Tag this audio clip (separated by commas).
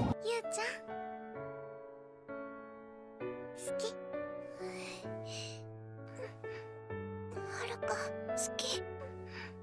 Speech, Music